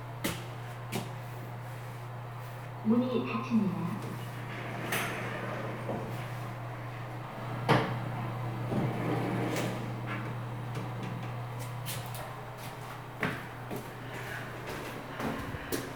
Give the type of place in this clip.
elevator